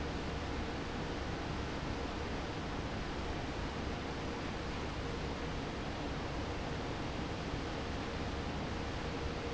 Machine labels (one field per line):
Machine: fan